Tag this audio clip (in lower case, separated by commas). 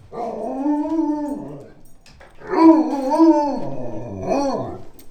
pets, animal, dog